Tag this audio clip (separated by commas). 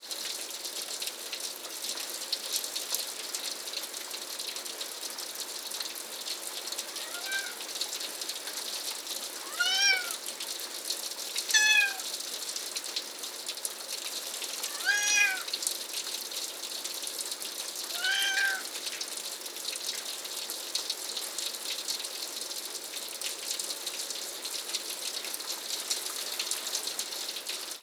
Meow, Animal, Cat, pets